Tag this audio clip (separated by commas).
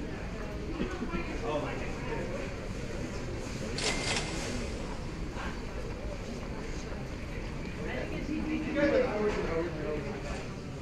Speech